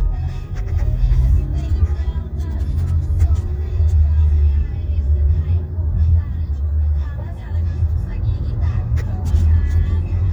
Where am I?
in a car